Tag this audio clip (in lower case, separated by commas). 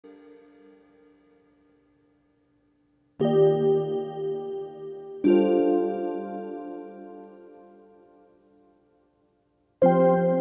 new-age music, music